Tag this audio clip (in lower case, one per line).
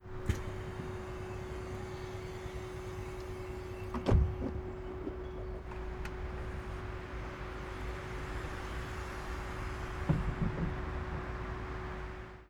bus
vehicle
motor vehicle (road)